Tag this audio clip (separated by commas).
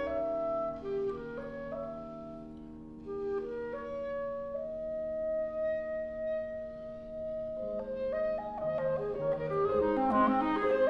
Music